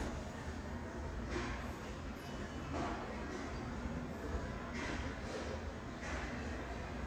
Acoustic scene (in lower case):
elevator